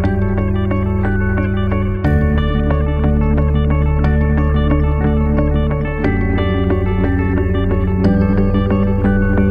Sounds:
Techno, Music, Electronic music

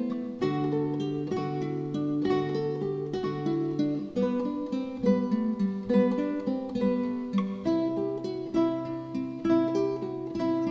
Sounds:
Plucked string instrument, Musical instrument, Guitar, Acoustic guitar, Music

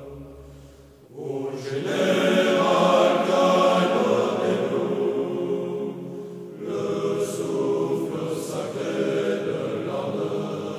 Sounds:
Mantra

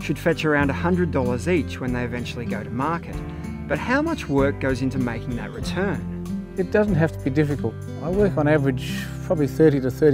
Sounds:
Speech, Music

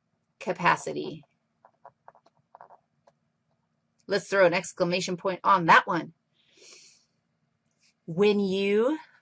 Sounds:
Breathing, Speech

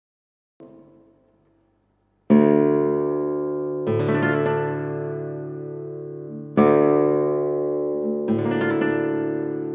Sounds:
Plucked string instrument, Music, Electronic tuner, inside a small room, Musical instrument, Guitar

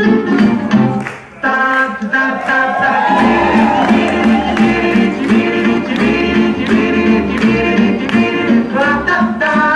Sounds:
inside a large room or hall, Music

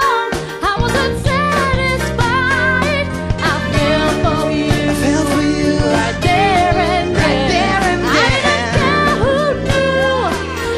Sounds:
Music, Pop music

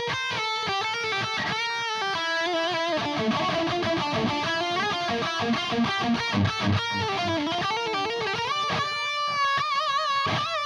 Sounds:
Music

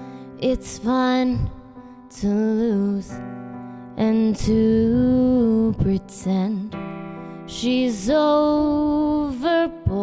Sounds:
Singing, Keyboard (musical), Musical instrument, Music, Piano

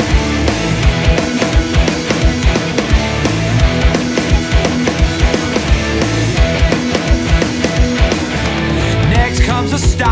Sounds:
Disco, House music, Music, Jazz, Dance music, Funk

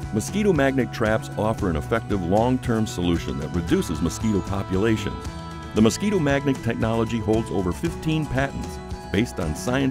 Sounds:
Music, Speech

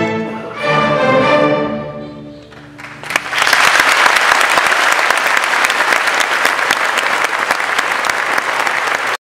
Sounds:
Music, Musical instrument, Classical music, Orchestra, Bowed string instrument

